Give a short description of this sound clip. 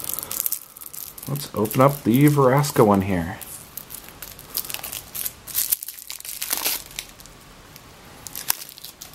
A man pleasantly speaks as he open up something bound in plastic